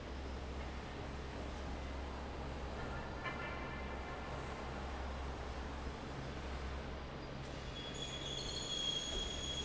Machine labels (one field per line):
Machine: fan